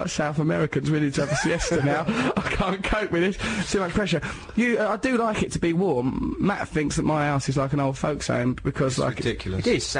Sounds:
Speech

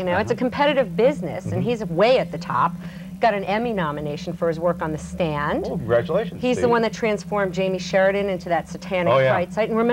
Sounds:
Speech

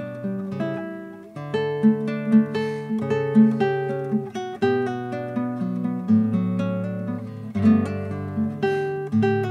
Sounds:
Strum, Plucked string instrument, Musical instrument, Music, Guitar

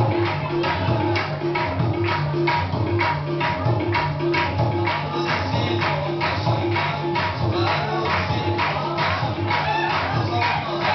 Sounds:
Dance music, Music

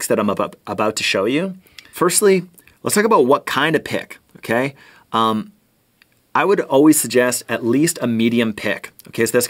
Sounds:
Speech

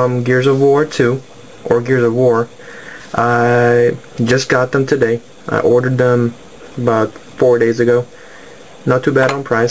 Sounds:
Speech

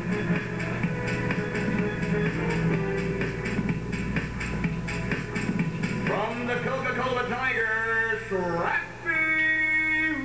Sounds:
Speech, Music

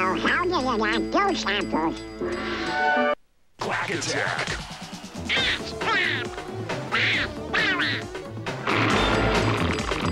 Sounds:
Music, Speech

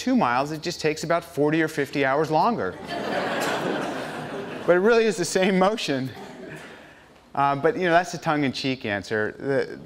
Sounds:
inside a large room or hall, Speech

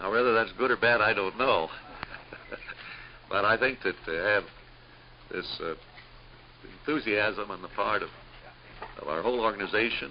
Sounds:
Speech, inside a large room or hall

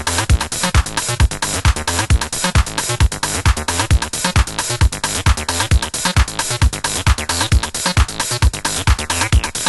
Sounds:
Electronica, Music, House music, Sampler

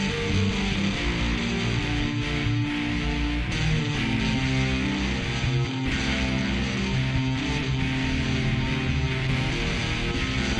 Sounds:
Music

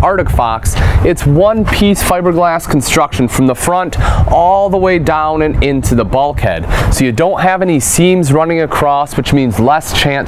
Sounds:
Speech

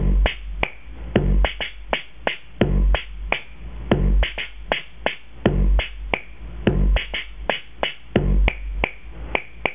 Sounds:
Effects unit, inside a small room

